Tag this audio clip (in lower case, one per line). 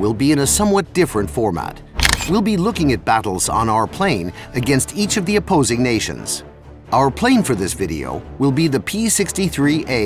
music
speech